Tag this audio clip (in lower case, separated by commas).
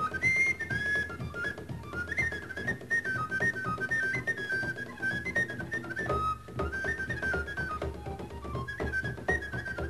music